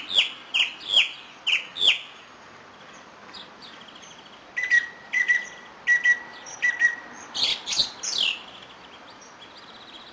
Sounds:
chirp
bird
bird call
bird chirping

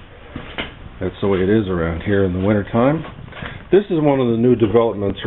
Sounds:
speech

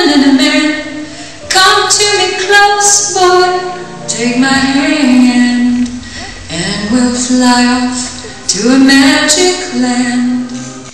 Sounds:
music
singing

